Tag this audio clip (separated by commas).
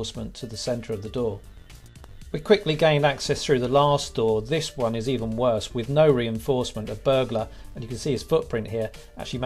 Music, Speech